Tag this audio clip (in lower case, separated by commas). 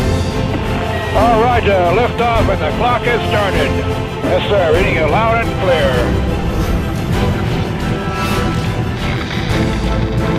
music, speech